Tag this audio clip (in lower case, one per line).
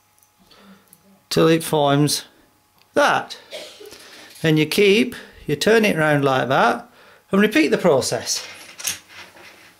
speech
inside a small room